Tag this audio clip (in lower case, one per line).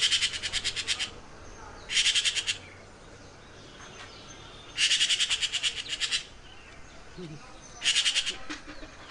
magpie calling